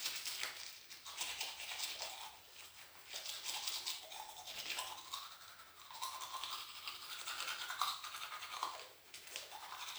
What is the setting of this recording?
restroom